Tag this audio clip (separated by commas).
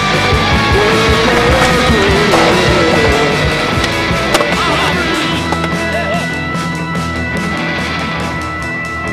Skateboard